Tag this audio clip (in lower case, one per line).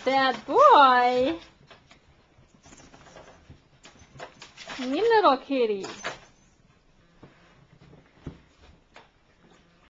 speech